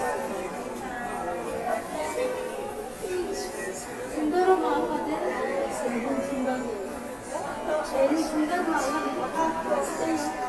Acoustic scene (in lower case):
subway station